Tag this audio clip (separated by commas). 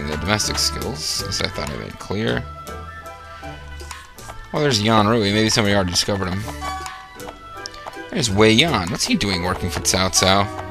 Speech, Music